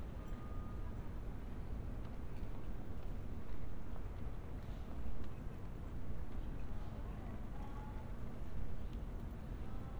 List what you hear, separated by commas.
person or small group talking